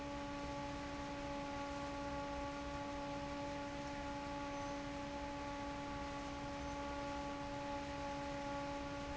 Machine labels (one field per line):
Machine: fan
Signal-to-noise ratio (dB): 6 dB